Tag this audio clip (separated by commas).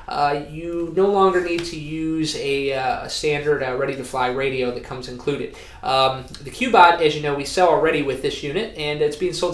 Speech